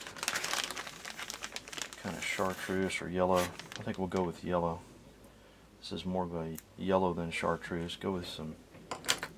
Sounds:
speech

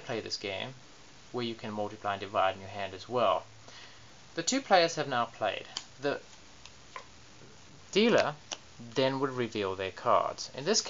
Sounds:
speech
inside a small room

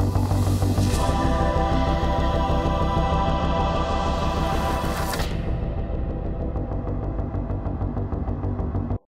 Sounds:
music

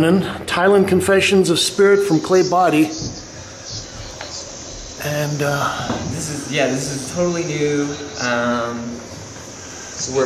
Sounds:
inside a small room
speech

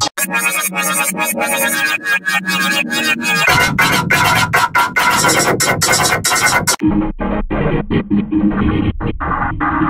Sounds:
music
sound effect

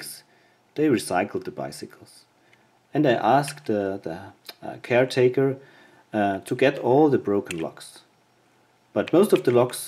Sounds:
speech

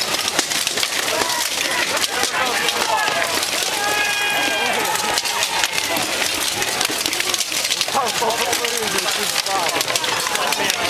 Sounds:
speech

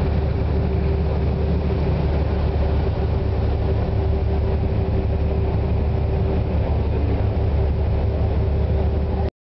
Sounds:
ship
motorboat
boat
vehicle

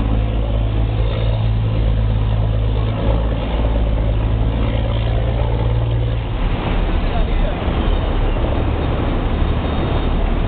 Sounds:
speech

